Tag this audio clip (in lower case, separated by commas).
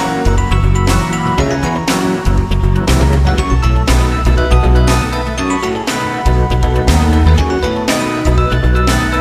music